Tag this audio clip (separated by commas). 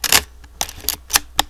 Mechanisms, Camera